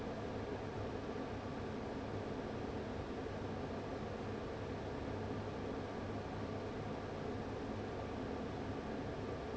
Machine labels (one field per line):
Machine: fan